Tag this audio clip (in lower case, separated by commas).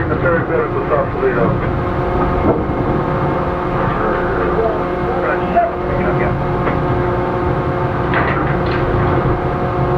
vehicle, speech, boat